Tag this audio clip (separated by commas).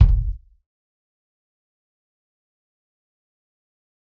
Music, Bass drum, Musical instrument, Drum, Percussion